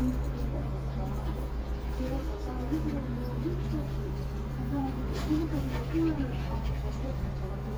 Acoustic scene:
crowded indoor space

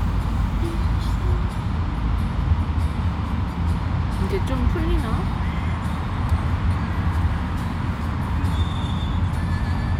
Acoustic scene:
car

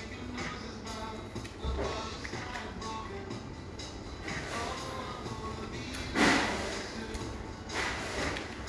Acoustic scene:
cafe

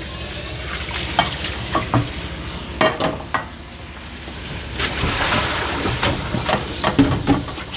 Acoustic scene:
kitchen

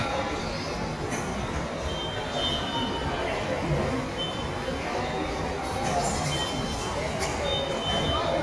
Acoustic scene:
subway station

